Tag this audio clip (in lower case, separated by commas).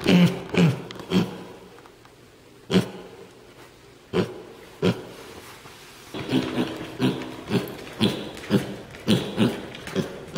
pig oinking